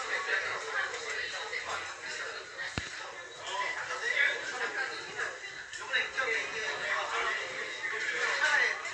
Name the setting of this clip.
crowded indoor space